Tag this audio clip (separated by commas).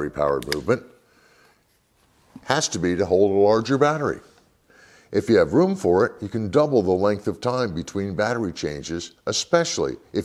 Speech